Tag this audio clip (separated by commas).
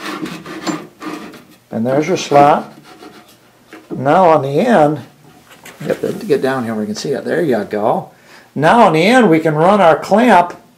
inside a small room, Speech